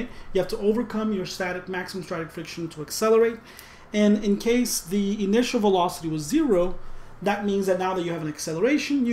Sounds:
speech

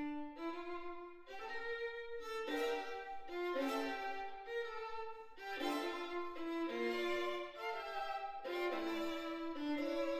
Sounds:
musical instrument
music
violin

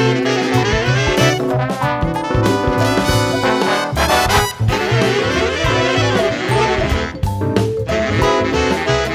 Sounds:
musical instrument
music

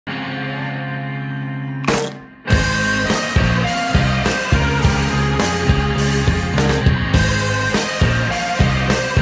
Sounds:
rock music
music

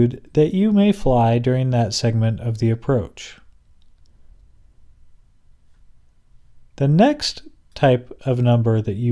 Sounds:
speech

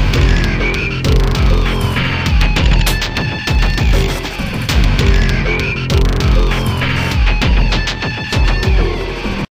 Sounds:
music

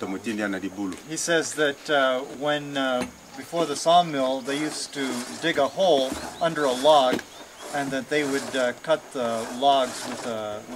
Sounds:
speech

